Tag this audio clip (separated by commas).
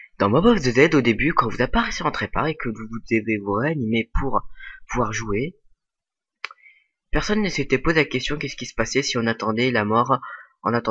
Speech